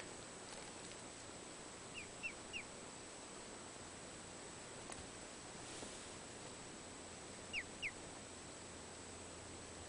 Small bird chirping